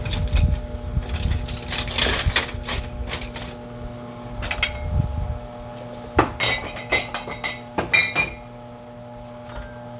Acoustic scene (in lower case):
kitchen